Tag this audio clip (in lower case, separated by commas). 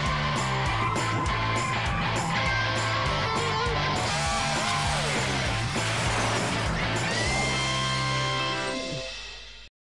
pop music, dance music, music